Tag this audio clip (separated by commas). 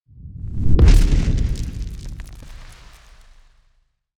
Fire